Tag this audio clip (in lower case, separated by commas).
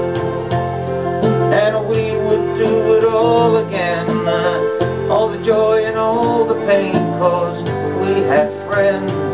music, banjo